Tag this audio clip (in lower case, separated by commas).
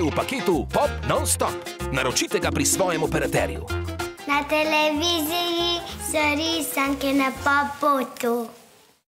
speech, music